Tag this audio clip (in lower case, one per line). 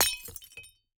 glass
shatter